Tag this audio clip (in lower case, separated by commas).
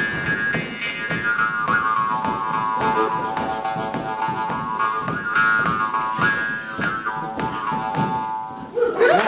music, speech